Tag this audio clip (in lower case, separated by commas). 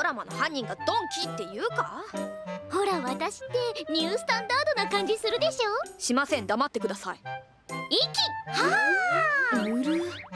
speech, music